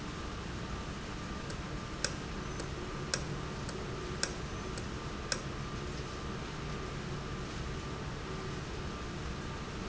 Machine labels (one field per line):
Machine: valve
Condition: normal